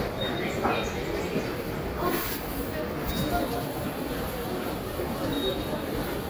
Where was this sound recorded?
in a subway station